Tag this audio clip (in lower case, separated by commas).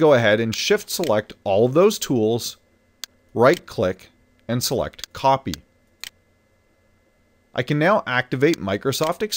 speech